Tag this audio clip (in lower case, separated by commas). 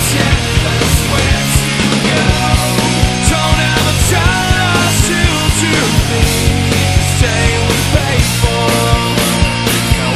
exciting music, music